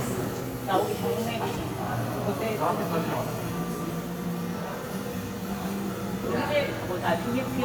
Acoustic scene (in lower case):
cafe